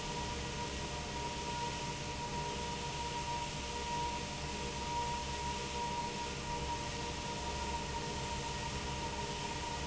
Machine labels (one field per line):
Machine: fan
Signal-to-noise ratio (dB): -6 dB